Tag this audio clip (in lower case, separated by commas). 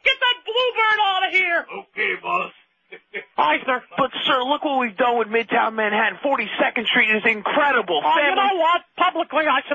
speech